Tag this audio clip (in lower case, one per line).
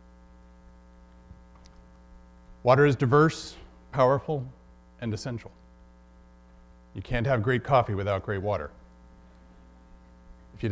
speech